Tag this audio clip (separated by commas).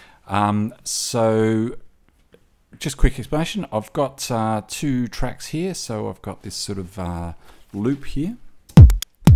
Speech, Music